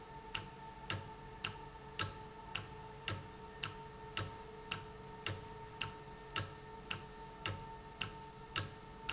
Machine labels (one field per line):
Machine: valve